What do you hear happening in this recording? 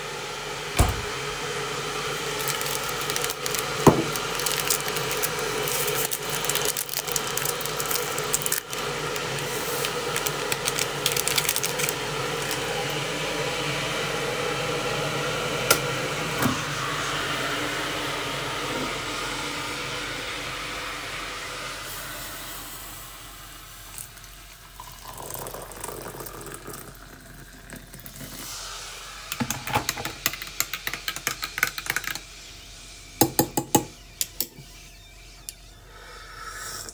The electric kettle was almost boiling, I opened the wardrop and got a cup and put it on the table, I grabbed a sachet of coffee, opened it and pour it in a cup. Then I switched the kattle off and poured the water in the cup, I stirred with a spoon and sipped.